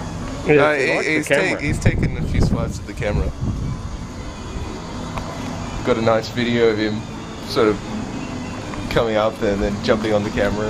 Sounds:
Speech

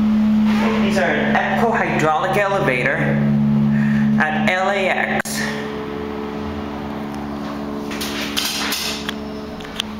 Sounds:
Speech

